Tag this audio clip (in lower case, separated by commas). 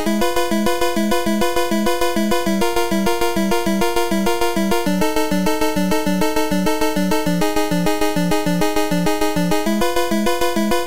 music